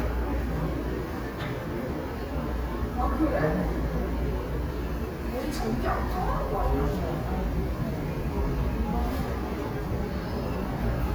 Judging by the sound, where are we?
in a subway station